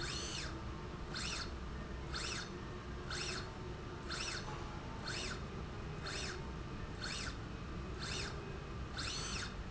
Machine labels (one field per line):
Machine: slide rail